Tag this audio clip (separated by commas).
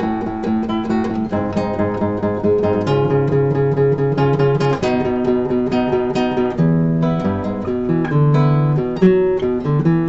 Guitar, Acoustic guitar, Strum, Music, Musical instrument, Plucked string instrument